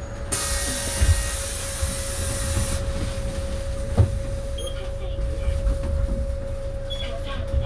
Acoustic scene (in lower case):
bus